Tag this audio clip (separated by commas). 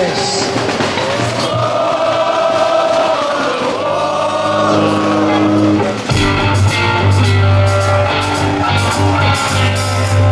Music